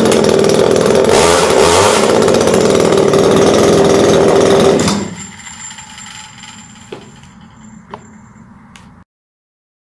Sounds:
Tools, chainsawing trees, Chainsaw

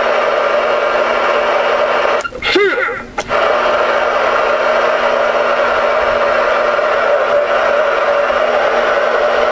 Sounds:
Radio

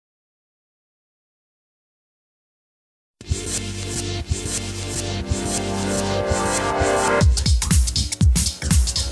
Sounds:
Music

